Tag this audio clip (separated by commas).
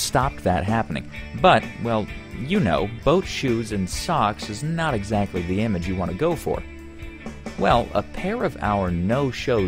Music, Speech